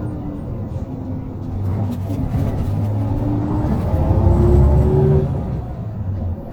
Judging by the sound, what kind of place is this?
bus